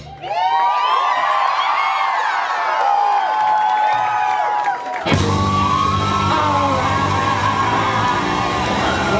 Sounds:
Drum kit, Crowd, Singing, people crowd, Music

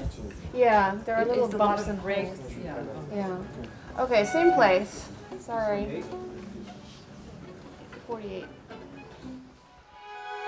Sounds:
Musical instrument, Music, Female speech, Speech, Bowed string instrument, Cello, Violin

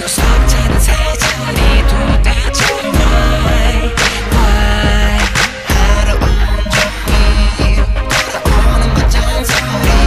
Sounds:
Music, Singing

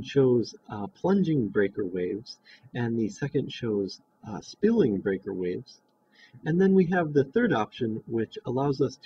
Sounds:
Speech

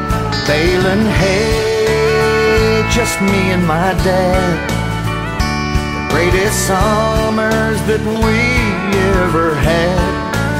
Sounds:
Music, Country

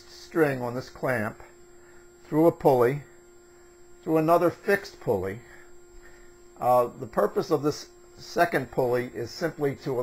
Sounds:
Speech

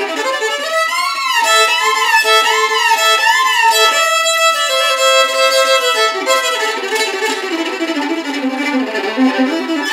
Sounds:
Music, Musical instrument, Violin

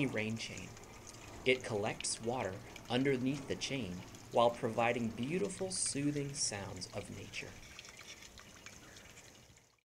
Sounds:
Raindrop

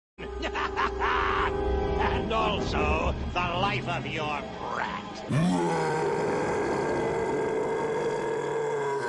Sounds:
Speech, Grunt, Music

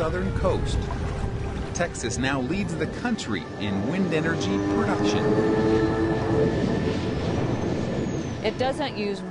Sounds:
Music, Speech

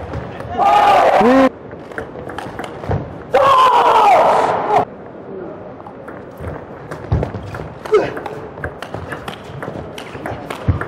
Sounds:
playing table tennis

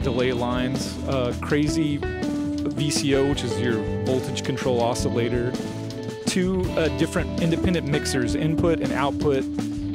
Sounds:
Speech, Music

